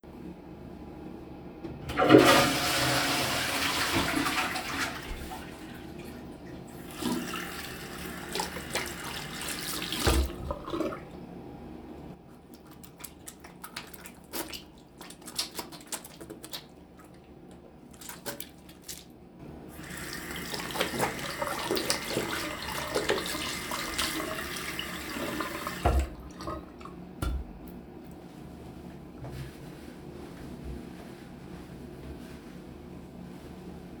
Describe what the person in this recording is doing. I flush the toilet, turn on the water, wet my hands, turn the water off, take a bar of soap and start washing my hands, turn the water back on again, rinse off my hands, turn it off, dry my hands with a towel.